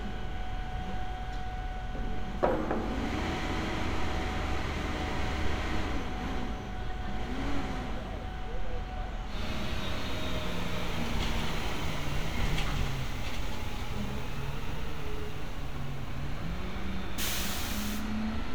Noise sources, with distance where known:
large-sounding engine, near

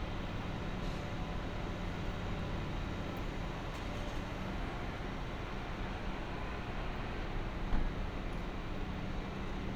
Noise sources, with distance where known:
engine of unclear size

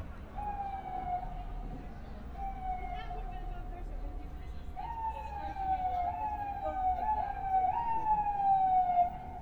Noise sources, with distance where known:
siren

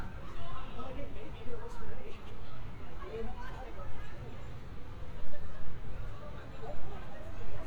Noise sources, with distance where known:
person or small group talking, near

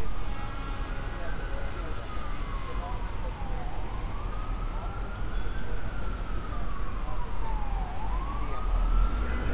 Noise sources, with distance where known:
unidentified alert signal

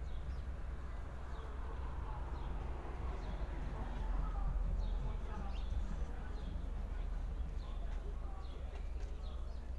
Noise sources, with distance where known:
medium-sounding engine, far
music from a moving source

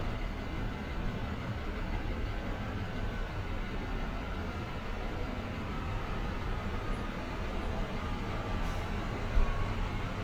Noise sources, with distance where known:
engine of unclear size, near

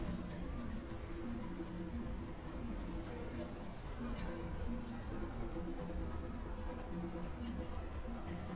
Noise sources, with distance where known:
music from a fixed source, far
person or small group talking

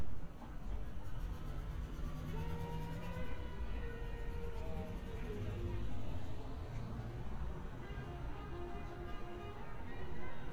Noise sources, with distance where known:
music from an unclear source, far

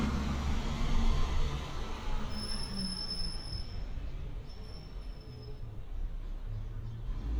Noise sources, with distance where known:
large-sounding engine, near

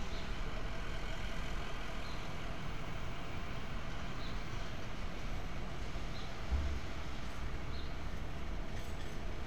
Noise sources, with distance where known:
engine of unclear size

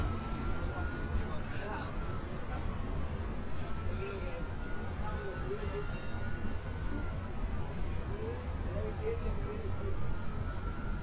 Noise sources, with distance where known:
siren

